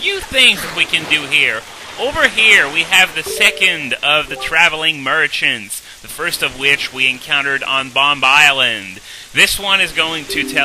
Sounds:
speech

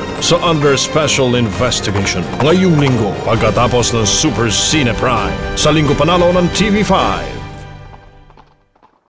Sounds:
music, speech, horse, clip-clop

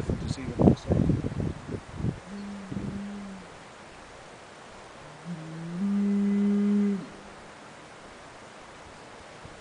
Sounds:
bovinae, moo, livestock

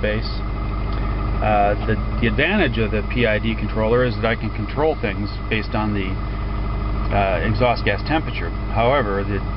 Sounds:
speech, vehicle

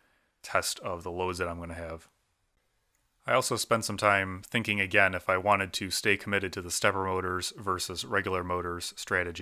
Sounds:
speech

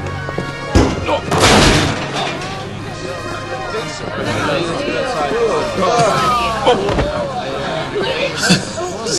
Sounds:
male speech, female speech, speech, music, conversation

